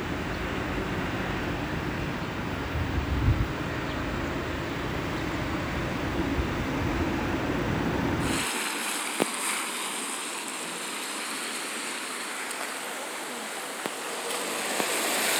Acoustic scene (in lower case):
residential area